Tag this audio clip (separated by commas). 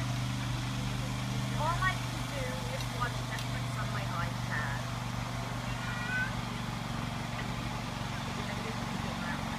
Water vehicle, Motorboat